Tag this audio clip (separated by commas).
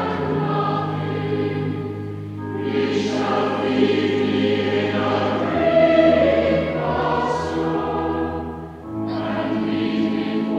Music, Mantra